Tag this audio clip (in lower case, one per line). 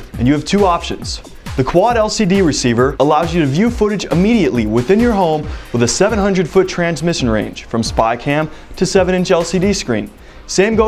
speech
music